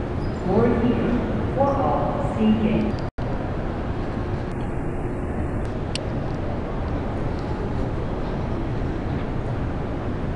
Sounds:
speech

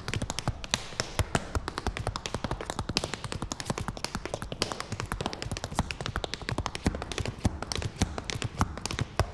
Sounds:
tap dancing

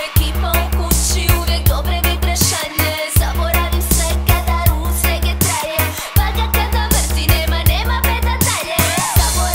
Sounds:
music

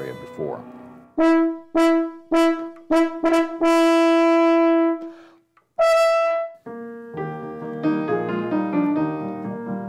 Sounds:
playing french horn

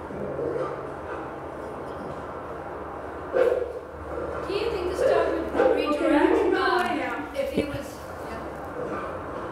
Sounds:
speech

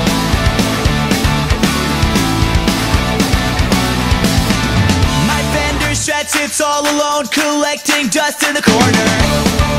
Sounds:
music, background music

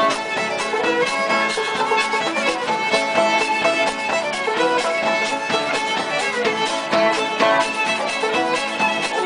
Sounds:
musical instrument, pizzicato, music, fiddle

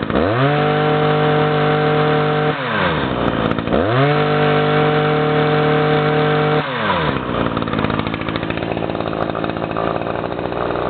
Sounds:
hedge trimmer running

